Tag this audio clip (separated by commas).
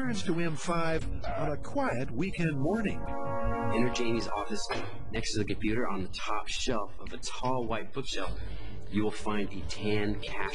Speech, Music